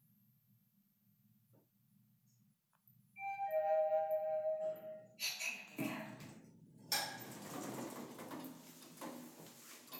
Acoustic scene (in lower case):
elevator